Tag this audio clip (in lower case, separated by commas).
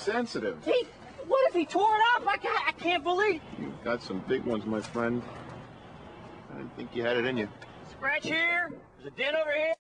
speech